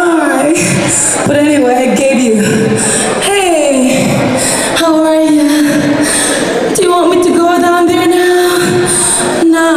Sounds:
Speech

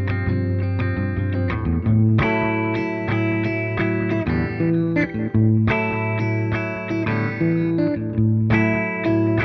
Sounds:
Music, Guitar

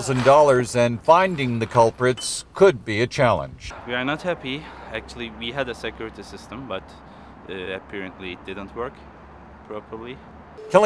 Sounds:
Speech

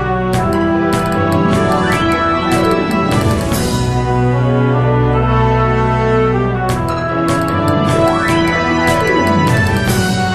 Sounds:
Music, Electronic music

